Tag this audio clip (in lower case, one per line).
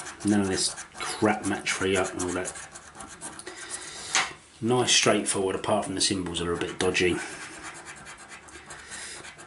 speech
inside a small room